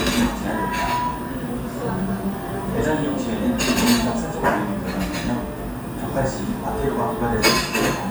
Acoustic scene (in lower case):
cafe